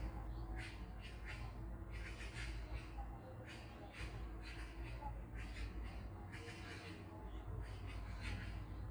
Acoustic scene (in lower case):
park